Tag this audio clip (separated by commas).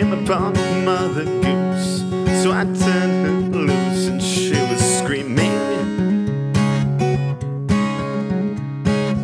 Music